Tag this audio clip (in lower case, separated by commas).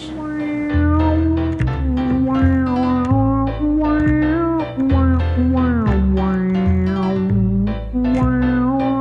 playing theremin